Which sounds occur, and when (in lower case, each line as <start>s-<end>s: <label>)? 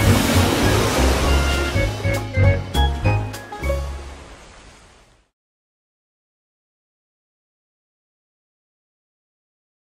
0.0s-2.1s: splatter
0.0s-4.3s: music
3.6s-5.3s: water